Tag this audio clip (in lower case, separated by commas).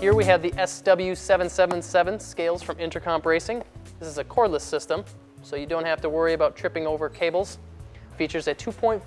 speech, music